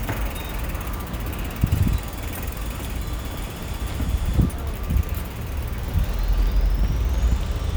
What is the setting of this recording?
residential area